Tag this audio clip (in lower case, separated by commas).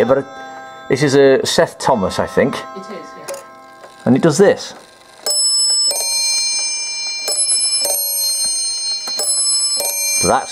speech